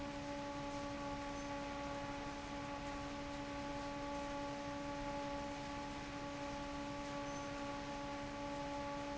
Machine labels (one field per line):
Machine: fan